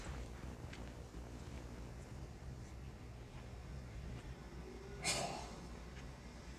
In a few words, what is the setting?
residential area